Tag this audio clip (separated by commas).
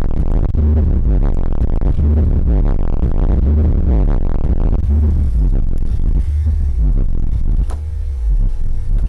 Music